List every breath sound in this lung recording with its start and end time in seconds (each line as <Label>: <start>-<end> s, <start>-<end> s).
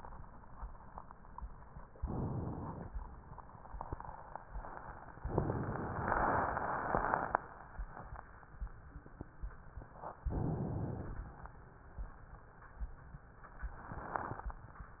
Inhalation: 1.95-2.92 s, 10.26-11.19 s